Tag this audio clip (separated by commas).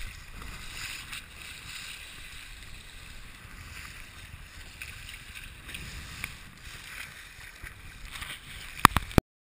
Sailboat